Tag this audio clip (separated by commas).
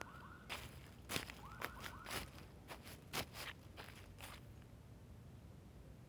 footsteps